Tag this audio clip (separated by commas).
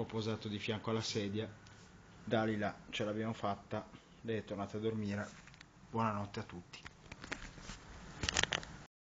Speech